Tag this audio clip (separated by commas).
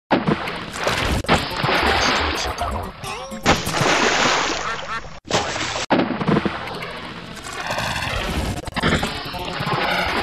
Music, Sound effect